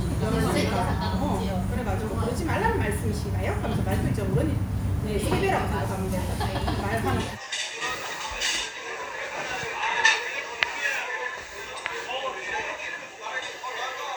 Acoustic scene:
restaurant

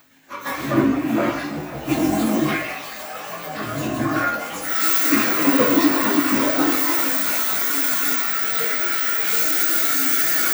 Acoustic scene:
restroom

